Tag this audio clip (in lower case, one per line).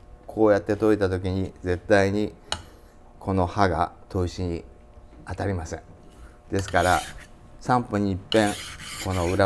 filing (rasp)
rub